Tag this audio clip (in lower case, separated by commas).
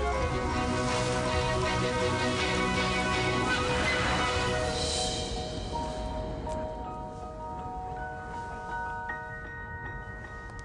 rustling leaves, music